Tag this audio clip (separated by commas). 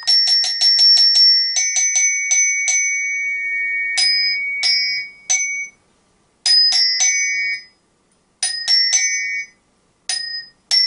Mallet percussion, Glockenspiel